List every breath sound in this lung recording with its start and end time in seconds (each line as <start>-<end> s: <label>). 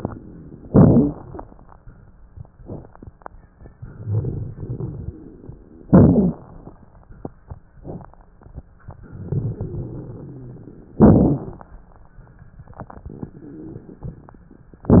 0.65-1.39 s: inhalation
0.65-1.39 s: crackles
3.95-5.14 s: exhalation
3.95-5.14 s: crackles
5.90-6.64 s: inhalation
5.90-6.64 s: crackles
9.09-10.84 s: exhalation
9.09-10.84 s: crackles
10.97-11.71 s: inhalation
10.97-11.71 s: crackles